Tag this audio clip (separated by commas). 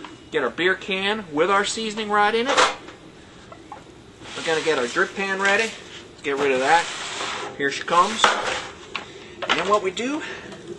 inside a small room, Speech